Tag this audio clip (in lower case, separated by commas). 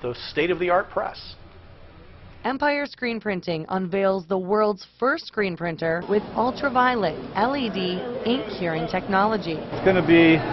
printer, speech